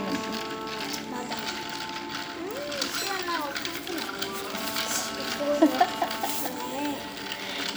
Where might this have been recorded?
in a cafe